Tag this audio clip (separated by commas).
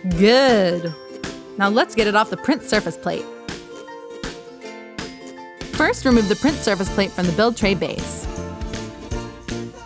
Music, Speech